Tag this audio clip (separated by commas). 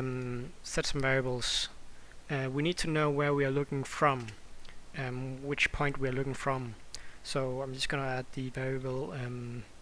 Speech